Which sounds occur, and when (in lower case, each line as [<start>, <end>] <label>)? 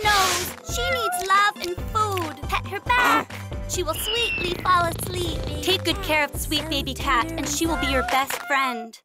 [0.00, 0.44] child speech
[0.00, 0.48] noise
[0.00, 9.04] music
[0.43, 0.60] generic impact sounds
[0.58, 3.22] child speech
[0.87, 0.96] generic impact sounds
[1.13, 1.27] generic impact sounds
[1.56, 1.65] generic impact sounds
[2.13, 2.31] generic impact sounds
[2.84, 3.23] noise
[3.27, 3.44] generic impact sounds
[3.67, 9.00] child speech
[3.90, 4.66] wheeze
[4.33, 5.62] purr
[6.32, 8.44] child singing
[7.42, 8.90] meow
[8.04, 8.44] clapping